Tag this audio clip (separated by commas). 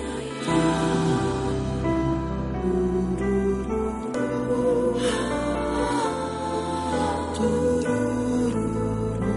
Music